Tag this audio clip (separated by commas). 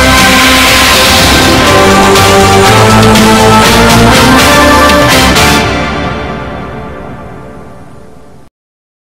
Music